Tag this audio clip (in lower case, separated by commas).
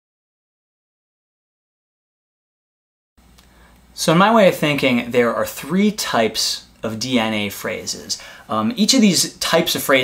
speech